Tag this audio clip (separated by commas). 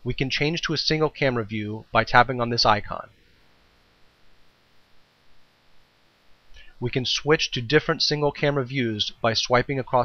Speech